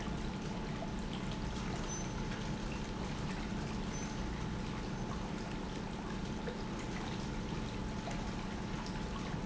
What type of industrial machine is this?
pump